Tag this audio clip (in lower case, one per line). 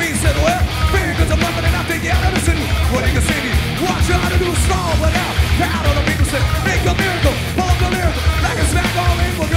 music